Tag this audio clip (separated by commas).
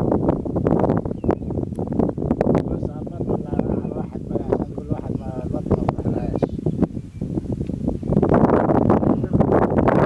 Speech